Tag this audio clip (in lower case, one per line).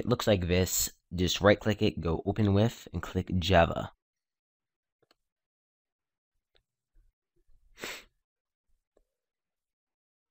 speech